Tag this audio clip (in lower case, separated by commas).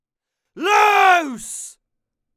human voice, shout